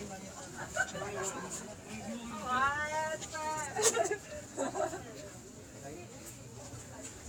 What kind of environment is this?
park